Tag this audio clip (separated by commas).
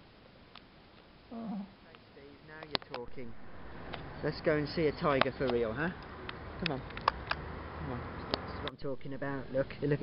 Speech, inside a small room, outside, urban or man-made